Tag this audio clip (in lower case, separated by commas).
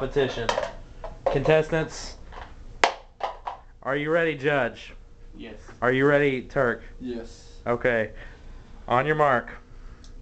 speech